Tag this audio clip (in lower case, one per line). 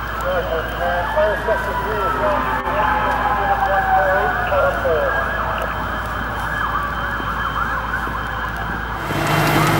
fire engine
outside, urban or man-made
speech
fire
emergency vehicle